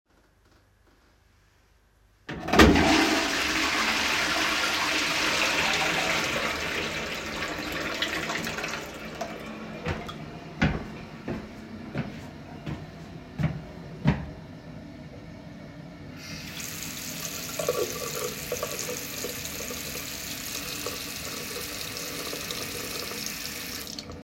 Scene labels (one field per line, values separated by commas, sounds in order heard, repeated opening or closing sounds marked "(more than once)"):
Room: bathroom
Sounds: toilet flushing, footsteps, running water